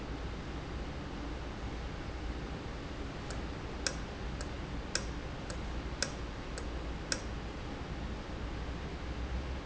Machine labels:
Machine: valve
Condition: normal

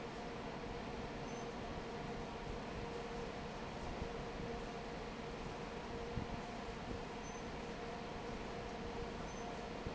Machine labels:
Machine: fan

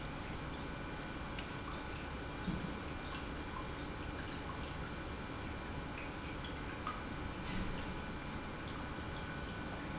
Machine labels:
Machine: pump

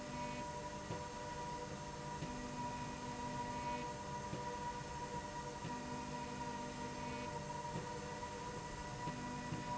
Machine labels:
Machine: slide rail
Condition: normal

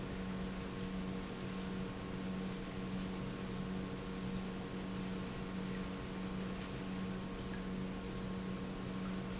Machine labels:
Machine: pump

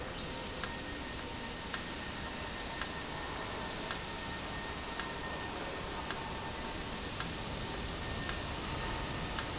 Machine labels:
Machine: valve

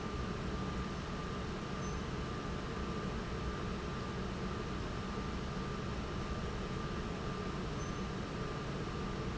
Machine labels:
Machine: pump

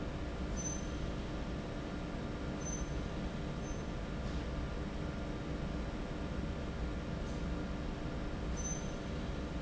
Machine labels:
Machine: fan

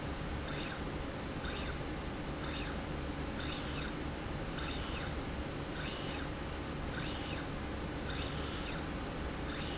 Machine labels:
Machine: slide rail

